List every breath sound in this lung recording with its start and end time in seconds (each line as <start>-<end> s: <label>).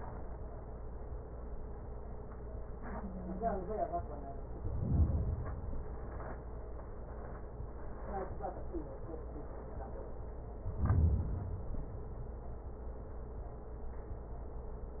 4.53-6.03 s: inhalation
10.59-12.07 s: inhalation